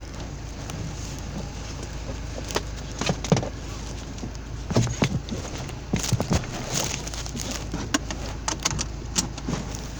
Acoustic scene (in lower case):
car